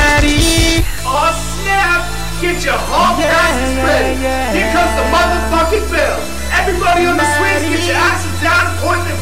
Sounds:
Music, Speech

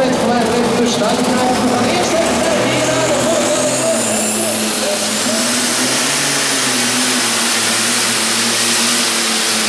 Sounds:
Vehicle, Speech

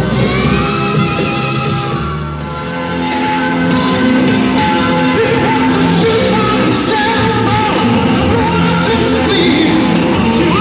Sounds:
Heavy metal, Music, Singing

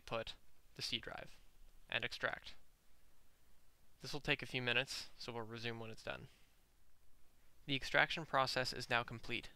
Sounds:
Speech

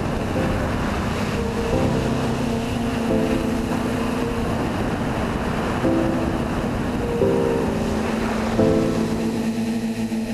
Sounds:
outside, rural or natural, Music

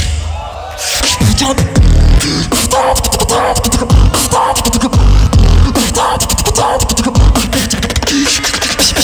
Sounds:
beat boxing

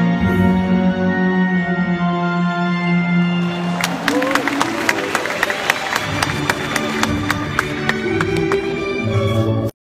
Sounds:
Music

